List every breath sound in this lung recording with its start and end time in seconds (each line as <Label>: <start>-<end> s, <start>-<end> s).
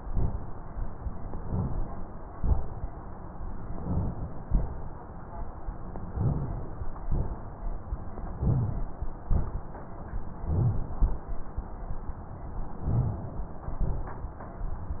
Inhalation: 1.23-1.90 s, 3.66-4.33 s, 6.11-6.70 s, 8.44-9.01 s, 10.44-10.99 s, 12.86-13.59 s
Exhalation: 0.04-0.63 s, 2.30-2.89 s, 4.48-5.07 s, 7.06-7.51 s, 9.28-9.72 s, 11.01-11.31 s, 13.81-14.35 s
Rhonchi: 6.11-6.64 s, 8.43-8.84 s, 10.47-10.89 s, 12.90-13.32 s